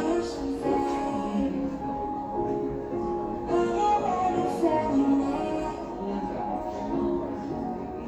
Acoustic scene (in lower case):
cafe